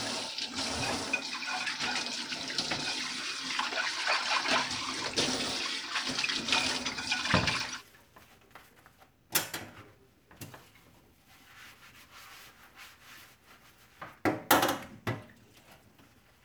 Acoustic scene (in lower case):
kitchen